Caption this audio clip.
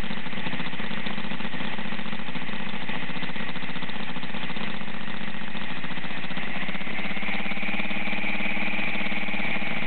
Engine idling then beginning to rev up